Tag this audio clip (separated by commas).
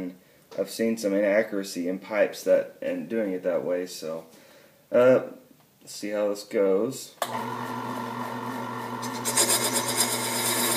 Speech